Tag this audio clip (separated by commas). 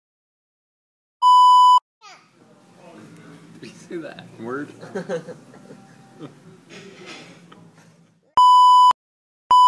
bleep, Giggle, Child speech